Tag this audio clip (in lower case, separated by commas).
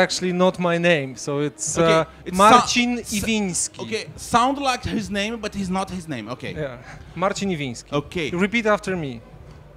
speech